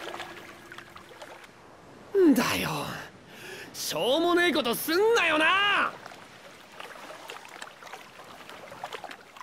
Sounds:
speech

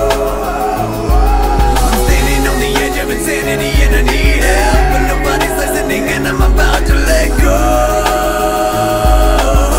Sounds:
music

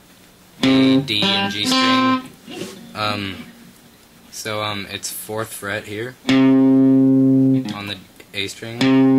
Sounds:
guitar
plucked string instrument
speech
strum
electric guitar
music
musical instrument

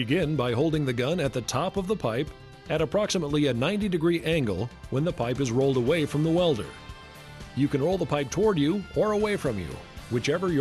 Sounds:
music
speech

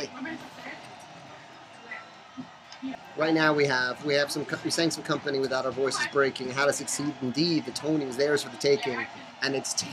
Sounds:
speech

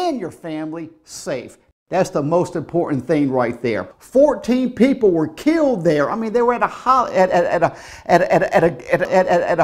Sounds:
speech

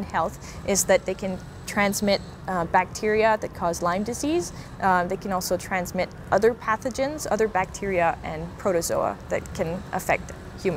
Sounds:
speech

